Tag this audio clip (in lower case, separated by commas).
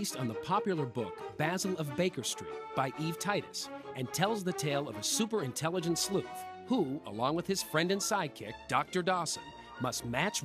music, speech